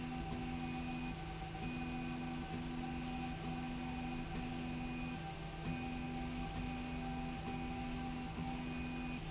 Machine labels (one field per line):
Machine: slide rail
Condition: normal